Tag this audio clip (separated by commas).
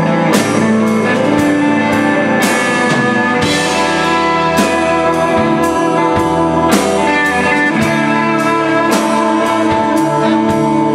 Music